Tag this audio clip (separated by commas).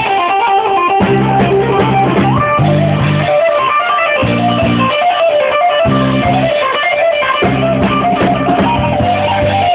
Blues, Music